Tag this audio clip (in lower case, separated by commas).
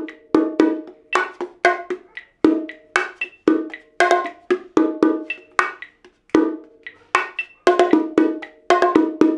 playing bongo